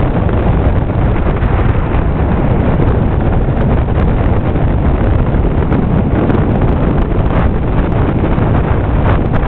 A motorboat gliding over water